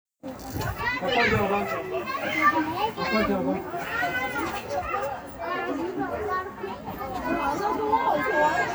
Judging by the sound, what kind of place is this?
residential area